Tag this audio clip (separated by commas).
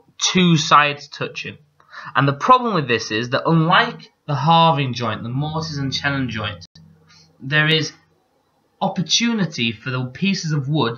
Speech